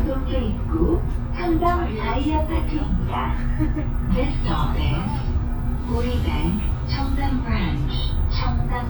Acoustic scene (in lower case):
bus